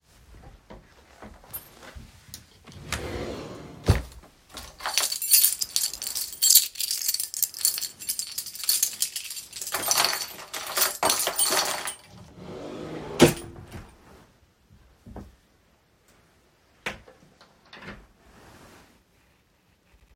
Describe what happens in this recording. The phone is worn on the wrist in the bedroom. A wardrobe drawer is opened and a keychain inside the drawer is picked up. After briefly handling it, the keychain is placed back and the drawer is closed.